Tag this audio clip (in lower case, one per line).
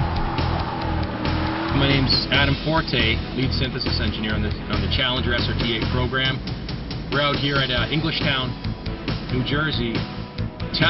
music
speech